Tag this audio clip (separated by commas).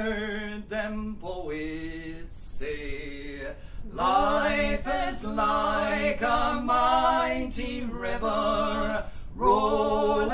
Female singing, Male singing